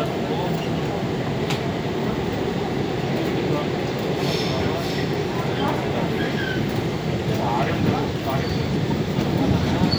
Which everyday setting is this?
subway train